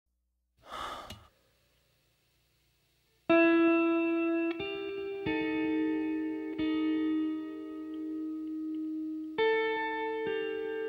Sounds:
guitar, music

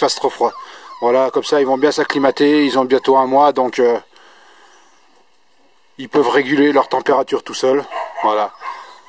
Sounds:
speech

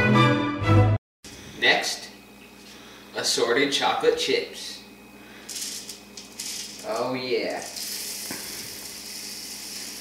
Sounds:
inside a small room, music, speech

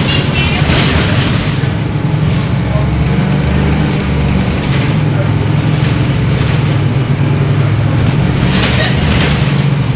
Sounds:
vehicle, speech, bus

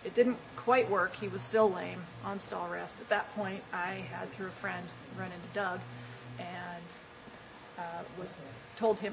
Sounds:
speech

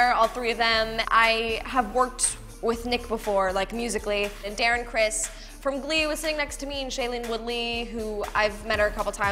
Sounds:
speech, music

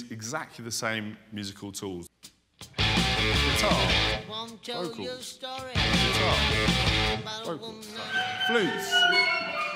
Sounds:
pop music, speech, music

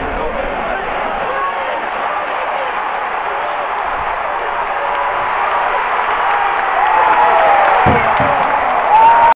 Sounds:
run

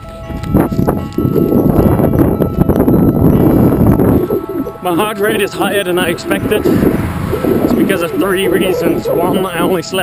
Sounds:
speech, run, music

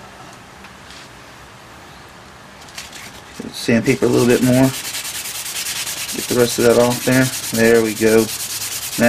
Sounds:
rub, sanding

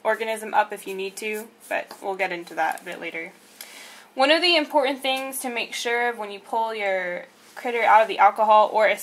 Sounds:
speech

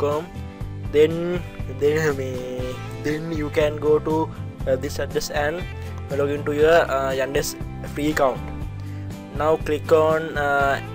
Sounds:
music, speech

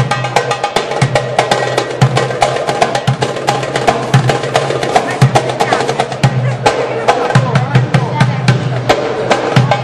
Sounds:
music, percussion, speech, wood block

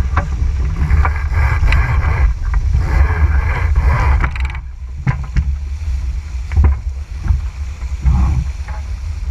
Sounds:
music

